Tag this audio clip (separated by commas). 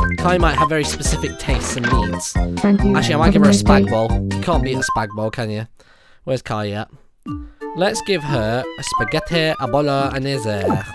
Speech, Music